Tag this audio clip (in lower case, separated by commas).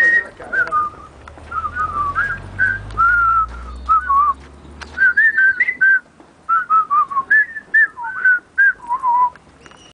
whistling, people whistling, music